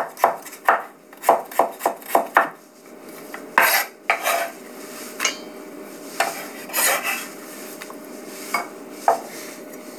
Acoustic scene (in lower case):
kitchen